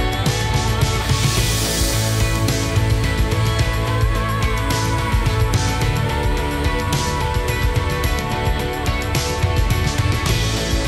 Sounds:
music

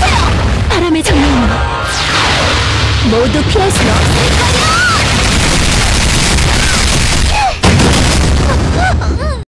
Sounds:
speech

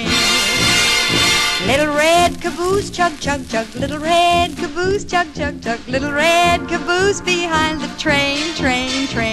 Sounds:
music

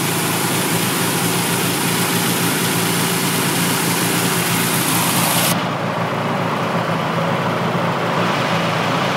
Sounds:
vehicle

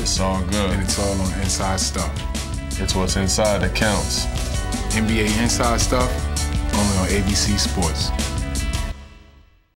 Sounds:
music
speech

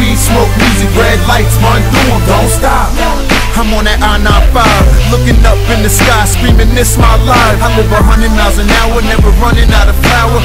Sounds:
music
rhythm and blues

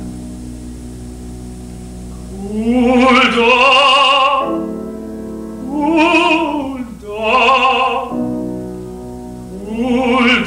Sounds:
male singing
music

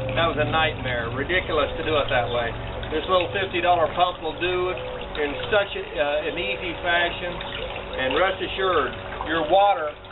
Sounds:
speech

